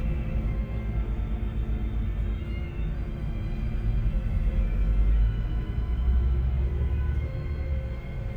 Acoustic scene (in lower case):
bus